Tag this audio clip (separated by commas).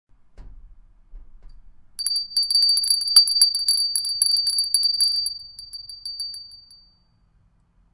Bell